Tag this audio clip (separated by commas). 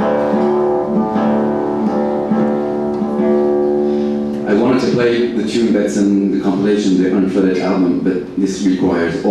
Musical instrument, Acoustic guitar, Plucked string instrument, Music, Guitar, Strum, Speech